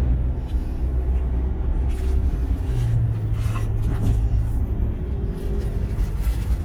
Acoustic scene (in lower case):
car